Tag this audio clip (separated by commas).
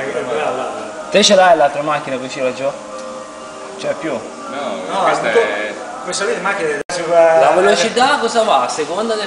Speech, Music